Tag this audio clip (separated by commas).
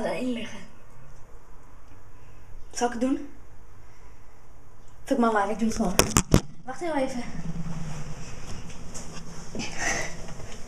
Speech